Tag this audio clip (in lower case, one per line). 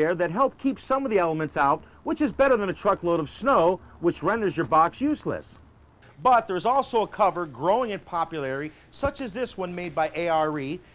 speech